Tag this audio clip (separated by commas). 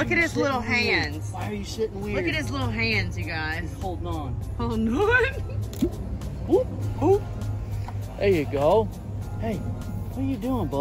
alligators